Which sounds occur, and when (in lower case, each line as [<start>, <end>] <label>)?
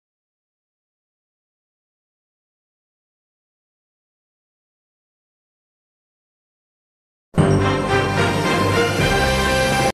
[7.33, 9.92] music